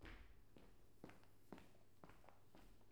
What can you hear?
footsteps